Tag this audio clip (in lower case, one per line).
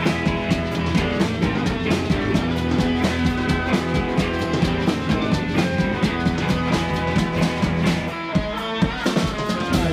music